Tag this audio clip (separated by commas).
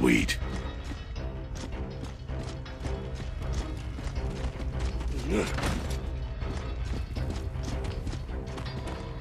Music, Speech